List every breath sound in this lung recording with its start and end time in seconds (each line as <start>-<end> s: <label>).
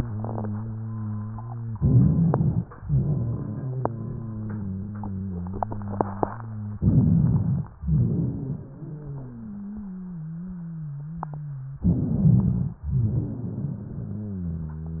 1.77-2.70 s: inhalation
1.77-2.70 s: rhonchi
2.77-6.73 s: exhalation
2.77-6.73 s: wheeze
6.75-7.68 s: rhonchi
7.79-11.75 s: exhalation
7.79-11.75 s: wheeze
11.79-12.76 s: inhalation
11.79-12.76 s: rhonchi
12.83-15.00 s: exhalation
12.83-15.00 s: wheeze